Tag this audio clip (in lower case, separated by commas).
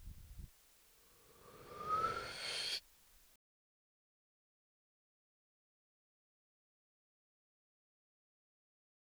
respiratory sounds, breathing